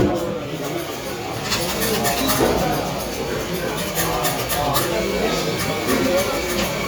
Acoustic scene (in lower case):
cafe